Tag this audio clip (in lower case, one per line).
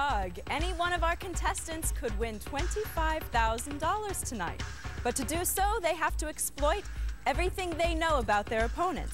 music
speech